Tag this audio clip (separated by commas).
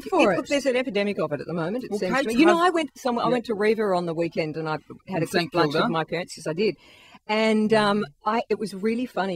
Speech, Radio